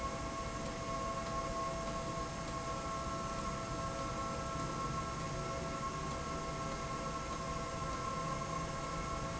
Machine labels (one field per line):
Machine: slide rail